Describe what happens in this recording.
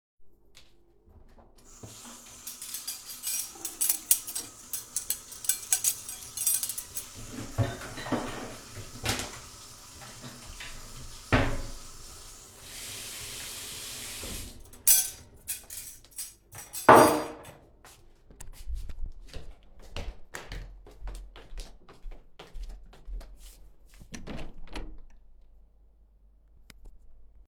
I was entering the room, while my alarm was working, then I started washing dishes